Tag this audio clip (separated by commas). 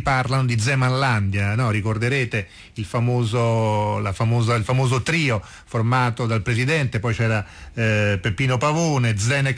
Speech, Radio